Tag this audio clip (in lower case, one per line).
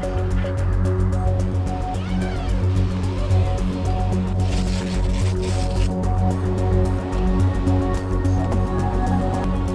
crackle
music